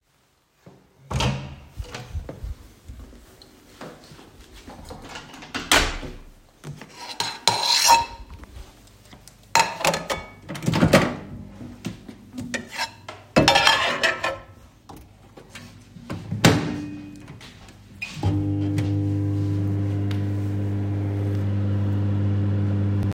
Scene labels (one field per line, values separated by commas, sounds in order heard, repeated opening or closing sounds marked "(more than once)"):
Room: kitchen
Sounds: footsteps, door (more than once), cutlery and dishes, microwave